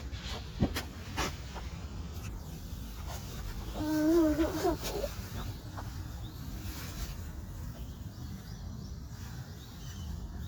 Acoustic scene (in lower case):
park